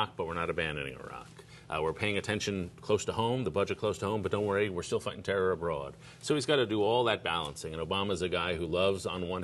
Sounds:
man speaking, monologue, Speech

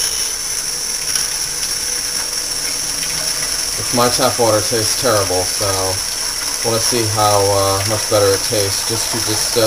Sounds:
Sink (filling or washing), Water

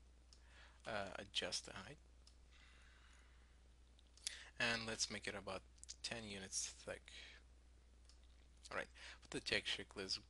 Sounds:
Speech

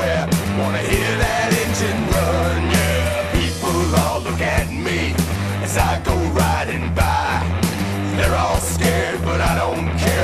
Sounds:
Music

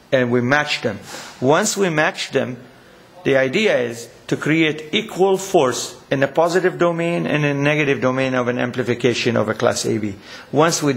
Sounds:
Speech

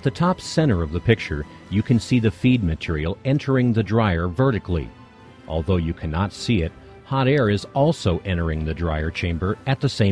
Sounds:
Speech, Music

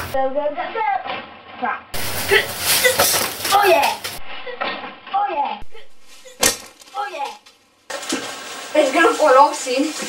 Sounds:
Speech, inside a small room

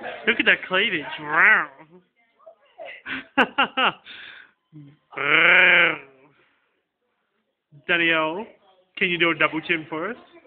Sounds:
Speech

